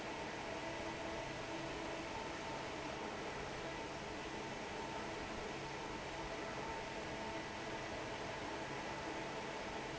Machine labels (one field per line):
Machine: fan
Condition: normal